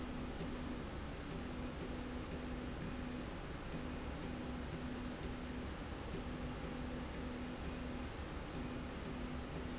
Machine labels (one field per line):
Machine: slide rail